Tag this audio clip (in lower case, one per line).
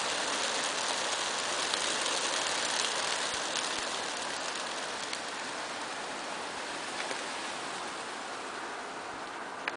dove